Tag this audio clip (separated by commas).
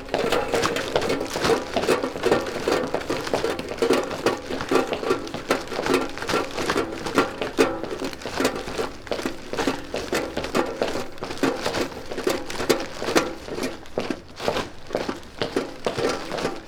Run